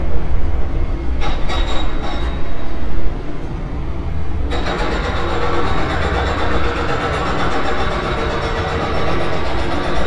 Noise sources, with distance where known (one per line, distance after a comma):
unidentified impact machinery, near